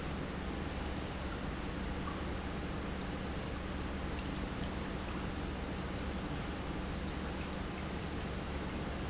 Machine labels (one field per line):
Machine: pump